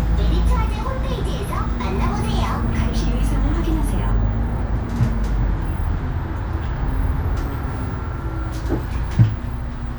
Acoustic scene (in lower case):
bus